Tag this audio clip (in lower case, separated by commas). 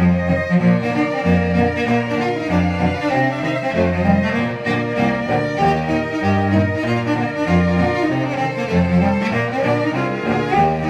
musical instrument, music, cello